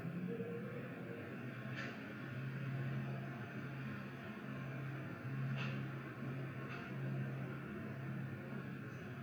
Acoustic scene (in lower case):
elevator